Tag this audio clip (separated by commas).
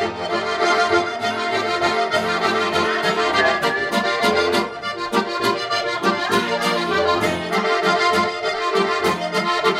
Accordion, playing accordion